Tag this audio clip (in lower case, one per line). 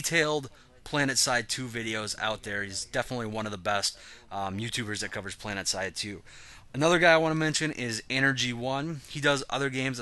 speech